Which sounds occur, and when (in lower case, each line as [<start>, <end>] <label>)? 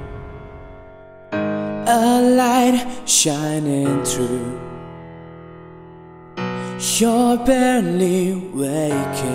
[0.00, 9.34] music
[1.82, 4.77] male singing
[6.73, 9.34] male singing